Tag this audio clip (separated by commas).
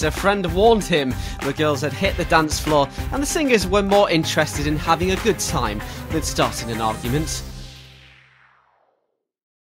Music, Speech